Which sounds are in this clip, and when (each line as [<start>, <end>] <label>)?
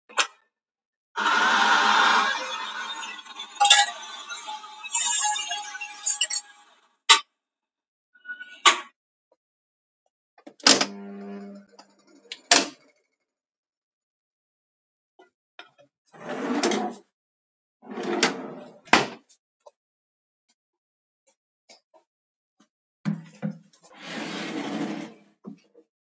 [0.12, 0.45] light switch
[1.14, 6.43] coffee machine
[16.07, 17.15] wardrobe or drawer
[17.69, 19.44] wardrobe or drawer
[23.11, 25.73] wardrobe or drawer